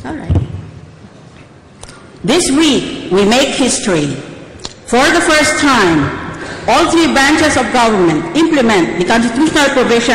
There is a woman giving a speech amplified by a microphone